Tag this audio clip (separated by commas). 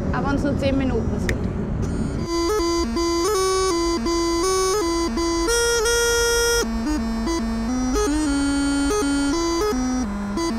playing bagpipes